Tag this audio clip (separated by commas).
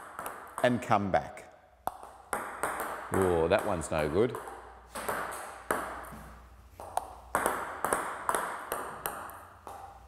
playing table tennis